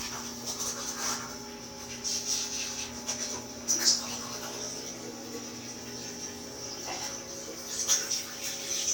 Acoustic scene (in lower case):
restroom